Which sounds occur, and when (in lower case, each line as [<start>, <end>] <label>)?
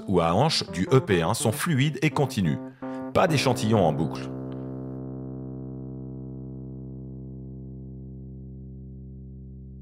[0.00, 4.97] background noise
[0.00, 9.81] music
[0.00, 2.52] man speaking
[2.54, 3.12] breathing
[2.60, 2.69] clicking
[3.14, 4.32] man speaking
[4.07, 4.17] clicking
[4.49, 4.53] clicking